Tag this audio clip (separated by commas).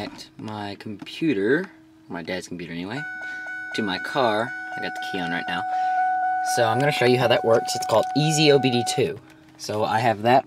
Speech